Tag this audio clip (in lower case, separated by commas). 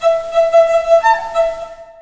musical instrument, music, bowed string instrument